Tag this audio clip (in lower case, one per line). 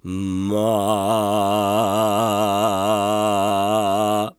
singing
male singing
human voice